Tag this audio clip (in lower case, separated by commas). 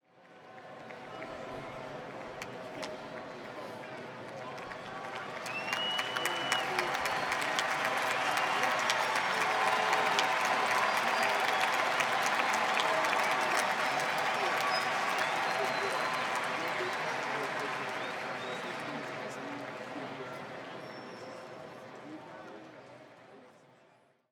cheering, applause, human group actions